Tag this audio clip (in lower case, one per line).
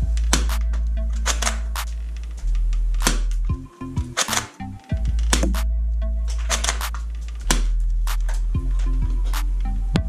cap gun shooting